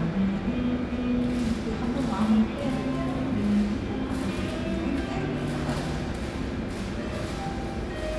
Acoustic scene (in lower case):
cafe